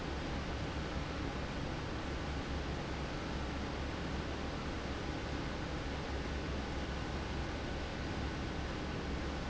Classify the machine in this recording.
fan